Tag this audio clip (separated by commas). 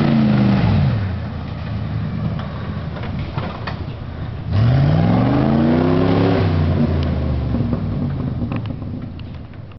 Vehicle, Truck